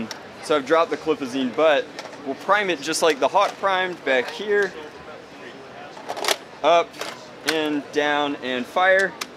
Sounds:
Speech

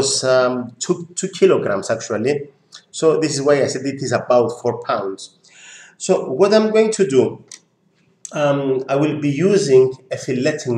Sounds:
Speech

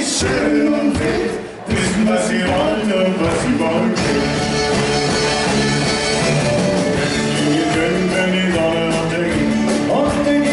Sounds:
Music

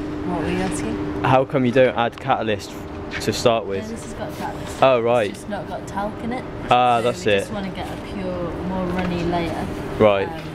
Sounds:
Speech

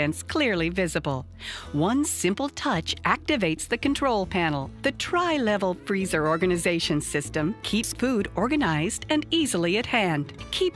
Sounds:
Music, Speech

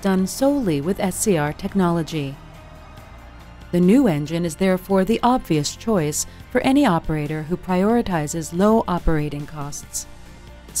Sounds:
Music, Speech

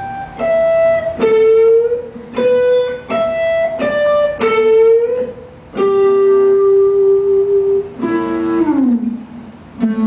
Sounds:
Plucked string instrument, Guitar, Music, Musical instrument

